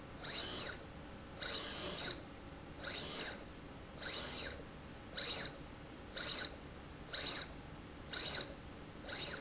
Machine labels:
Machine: slide rail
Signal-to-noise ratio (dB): 6 dB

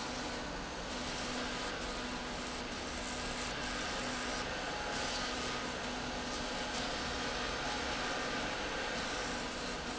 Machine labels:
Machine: slide rail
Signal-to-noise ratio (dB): -6 dB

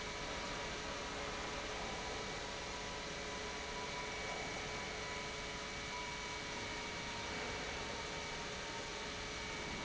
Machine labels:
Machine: pump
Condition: normal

